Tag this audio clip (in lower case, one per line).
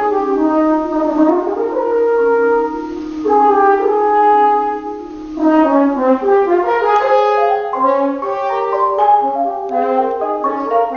music
playing french horn
french horn